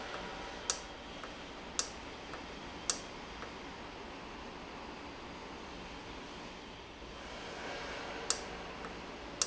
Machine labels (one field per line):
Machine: valve